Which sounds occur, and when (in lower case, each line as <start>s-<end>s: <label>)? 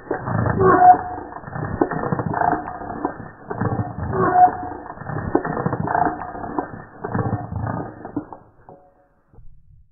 0.0s-9.0s: sound effect
4.3s-4.7s: creak